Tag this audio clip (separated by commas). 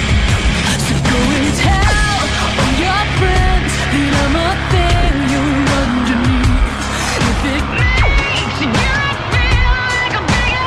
Music